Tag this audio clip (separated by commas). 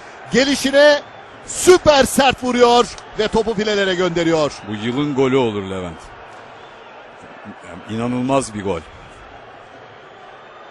Speech